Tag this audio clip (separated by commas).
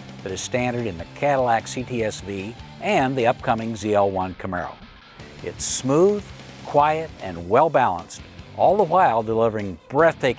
Music, Speech